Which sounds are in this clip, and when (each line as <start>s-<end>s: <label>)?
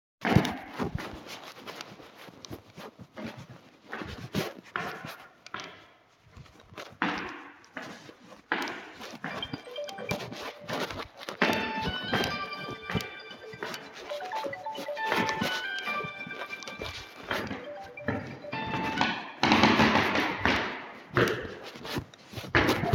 0.2s-22.9s: footsteps
9.6s-19.5s: phone ringing